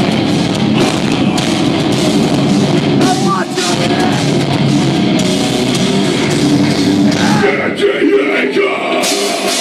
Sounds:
speech
music

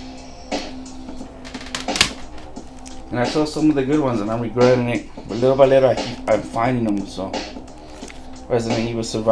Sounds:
inside a small room
speech
music

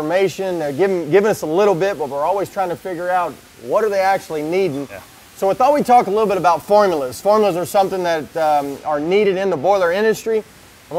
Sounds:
speech

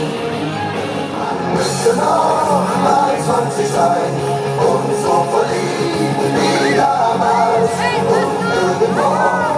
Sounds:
crowd

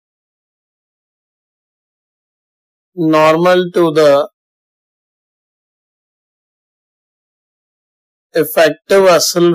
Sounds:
speech

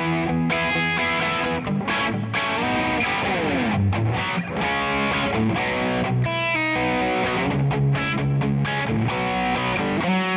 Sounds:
music

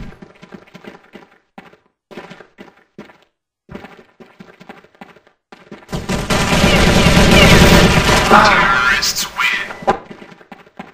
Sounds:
speech

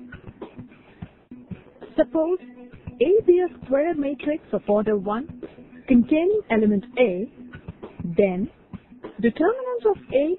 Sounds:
speech
music

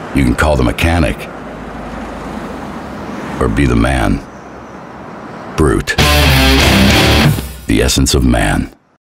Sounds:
car passing by
car
music
speech

